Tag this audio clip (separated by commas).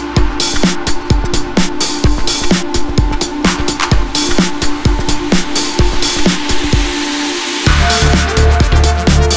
Music